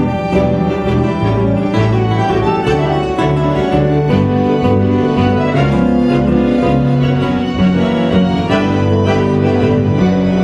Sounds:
orchestra, musical instrument, music, accordion

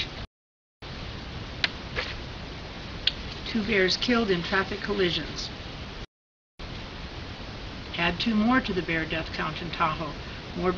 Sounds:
speech

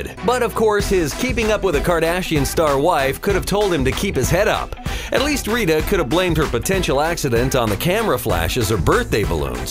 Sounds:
speech, music

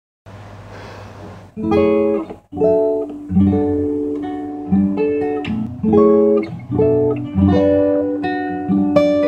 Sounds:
plucked string instrument, guitar, acoustic guitar, musical instrument, music, strum

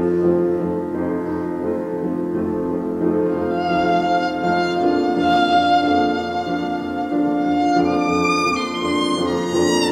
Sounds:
musical instrument, music, fiddle

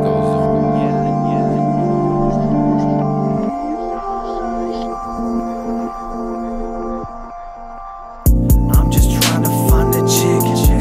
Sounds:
theme music, music

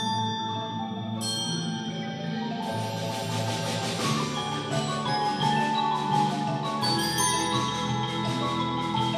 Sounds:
glockenspiel, xylophone, mallet percussion

